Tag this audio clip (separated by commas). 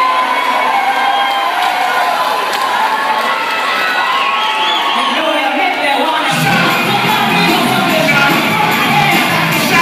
Crowd, Cheering